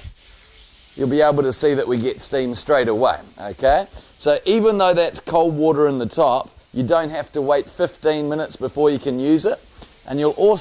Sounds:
speech

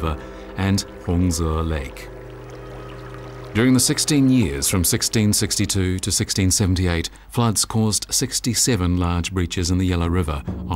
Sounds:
speech, music

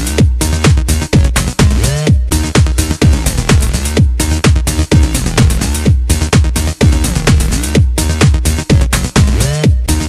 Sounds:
music

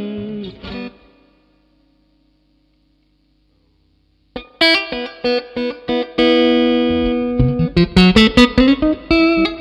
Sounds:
steel guitar, plucked string instrument, musical instrument, music, guitar, electric guitar

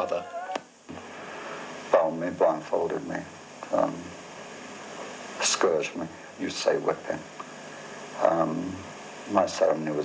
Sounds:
inside a small room, speech

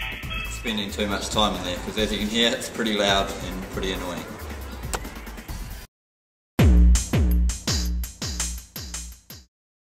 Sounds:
music, speech

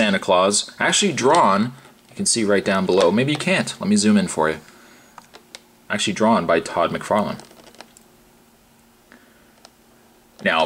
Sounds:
inside a small room, speech

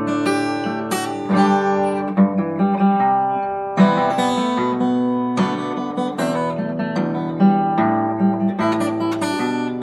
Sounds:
acoustic guitar, guitar, plucked string instrument, music, musical instrument

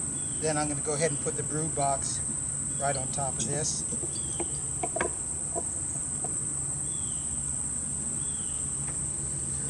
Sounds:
cricket, insect

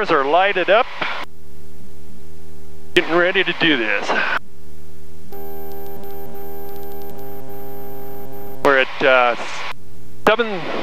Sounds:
speech

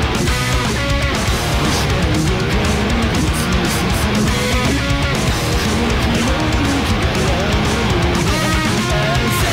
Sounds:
plucked string instrument, musical instrument, music, guitar, strum, acoustic guitar

